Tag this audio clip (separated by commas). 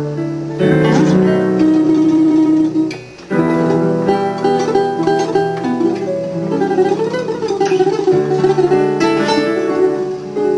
Ukulele, Music